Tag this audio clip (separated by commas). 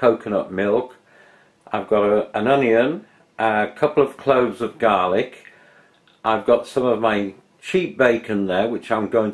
Speech